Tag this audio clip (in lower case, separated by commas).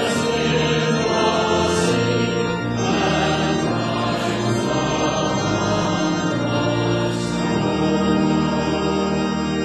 female singing, choir, music